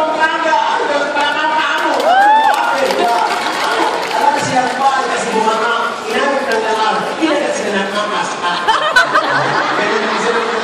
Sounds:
Speech

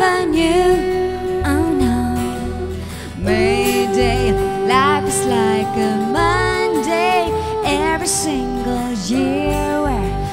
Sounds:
Female singing, Music

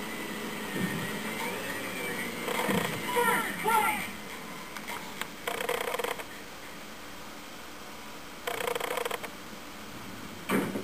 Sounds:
Speech

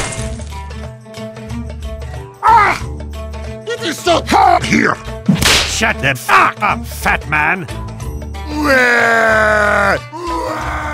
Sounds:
Music, Speech

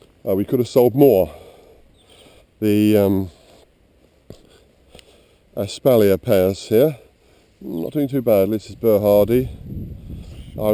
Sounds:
Walk, Speech

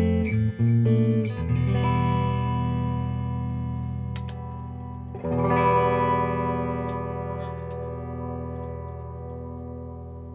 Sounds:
Plucked string instrument, Musical instrument, Music, Electric guitar

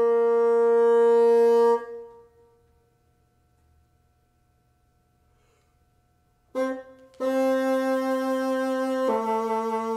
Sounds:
playing bassoon

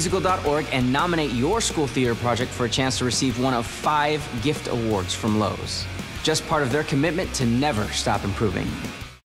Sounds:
Music, Speech

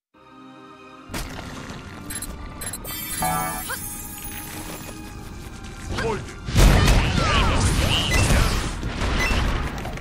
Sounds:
Music

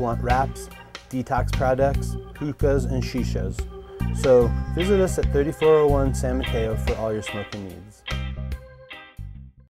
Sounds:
Speech, Music

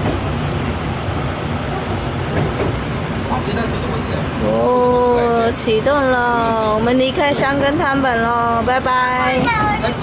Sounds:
Speech, Vehicle

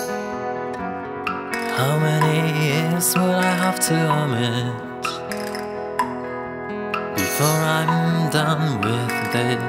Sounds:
Tender music, Music

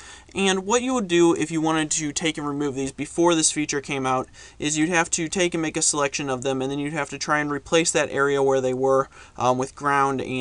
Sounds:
Speech

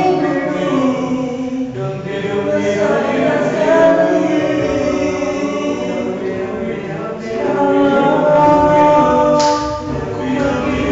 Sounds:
Male singing

